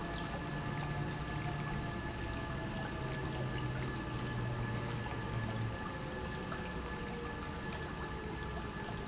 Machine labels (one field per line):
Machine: pump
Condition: normal